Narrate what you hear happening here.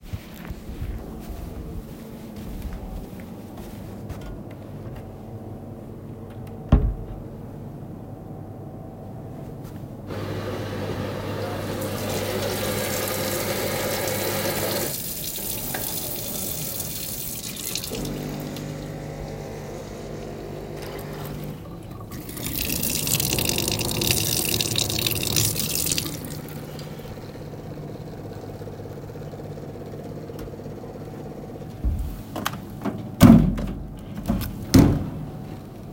I walk on a soft carpet floor to a coffee machine and start making a cup of coffee then I open the water tap. I then open and close a metal trash can. Then the coffee machine finishes.